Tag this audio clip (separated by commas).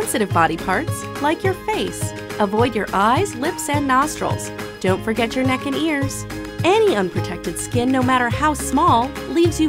Speech, Music